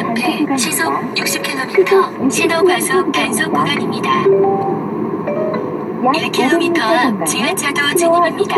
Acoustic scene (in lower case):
car